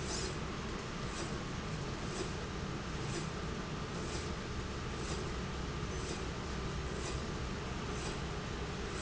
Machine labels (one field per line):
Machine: slide rail